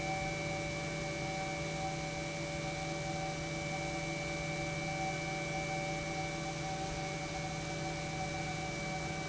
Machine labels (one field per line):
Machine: pump